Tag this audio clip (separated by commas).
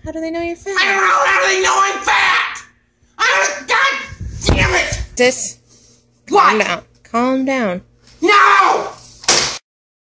Speech, inside a small room